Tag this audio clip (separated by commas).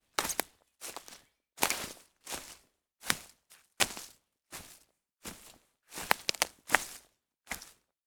Walk